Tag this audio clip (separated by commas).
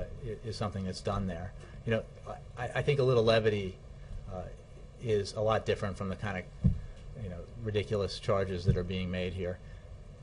Speech